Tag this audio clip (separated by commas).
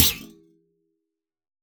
Thump